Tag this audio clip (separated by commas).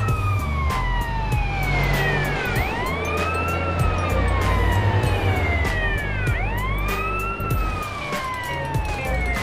fire truck siren